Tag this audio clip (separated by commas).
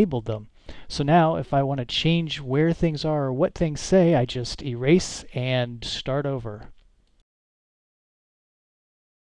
Speech